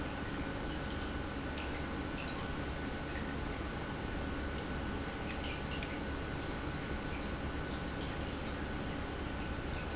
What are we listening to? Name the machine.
pump